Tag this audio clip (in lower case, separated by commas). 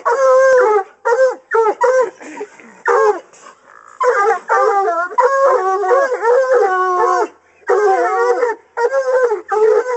dog baying